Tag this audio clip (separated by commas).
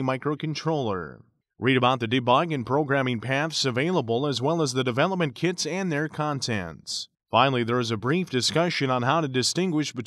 Speech